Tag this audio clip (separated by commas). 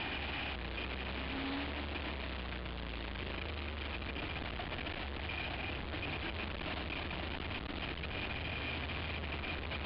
Vehicle, Car, Motor vehicle (road)